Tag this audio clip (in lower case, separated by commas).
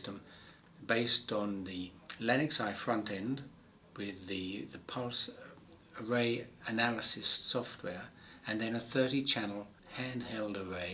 speech